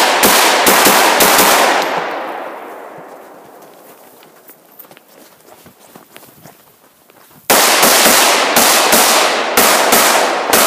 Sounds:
outside, rural or natural

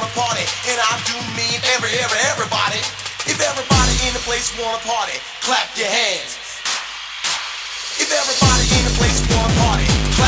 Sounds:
music

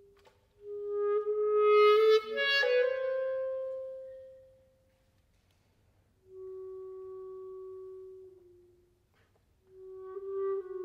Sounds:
playing clarinet

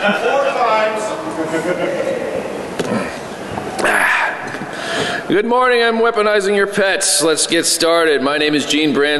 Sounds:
speech

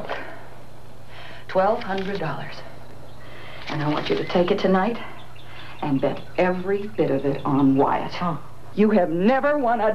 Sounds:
speech

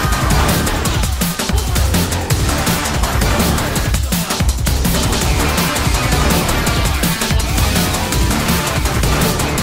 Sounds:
music

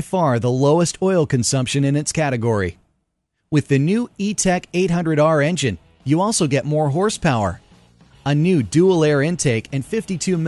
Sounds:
speech

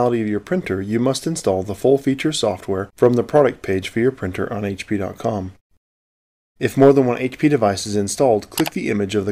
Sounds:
speech

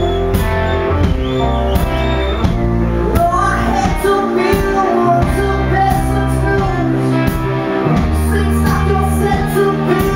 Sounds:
music

